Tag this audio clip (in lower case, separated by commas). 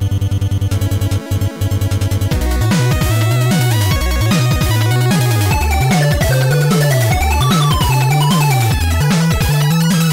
music, video game music